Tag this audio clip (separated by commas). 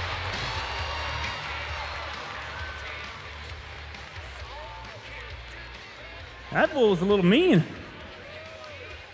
Speech, Music